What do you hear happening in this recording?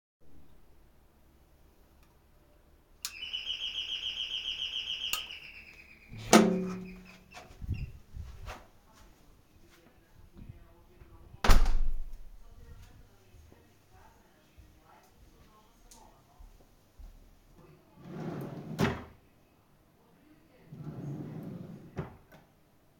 I rang the doorbell, then opened and closed the house door. After entering, I walked towards the drawer, opened it to store my hat, and then closed it again.